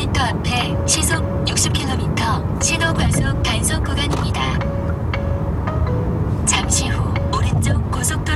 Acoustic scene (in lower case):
car